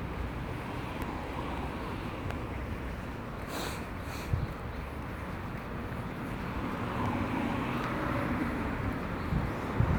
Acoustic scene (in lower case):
residential area